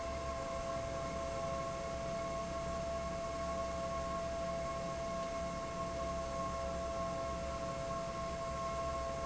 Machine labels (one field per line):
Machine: fan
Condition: abnormal